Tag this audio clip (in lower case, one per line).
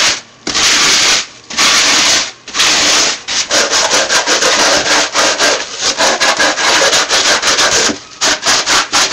sanding
rub